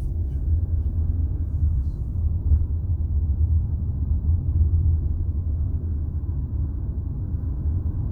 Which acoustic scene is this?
car